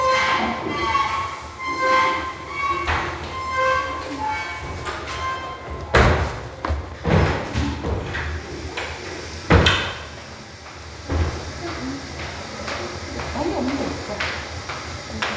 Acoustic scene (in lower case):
restroom